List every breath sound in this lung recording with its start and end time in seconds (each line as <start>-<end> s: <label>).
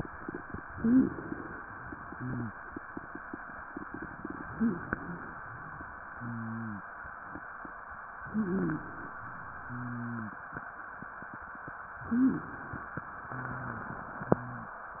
0.68-1.60 s: inhalation
0.74-1.18 s: wheeze
1.66-2.58 s: exhalation
2.10-2.52 s: wheeze
4.42-5.22 s: wheeze
4.42-5.34 s: inhalation
6.06-6.94 s: wheeze
8.20-9.12 s: inhalation
8.28-8.88 s: wheeze
9.64-10.44 s: wheeze
12.04-12.96 s: inhalation
12.08-12.68 s: wheeze
13.24-14.82 s: exhalation
13.26-13.94 s: wheeze
14.14-14.82 s: wheeze